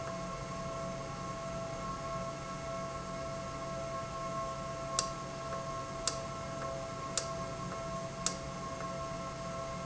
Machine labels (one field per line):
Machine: valve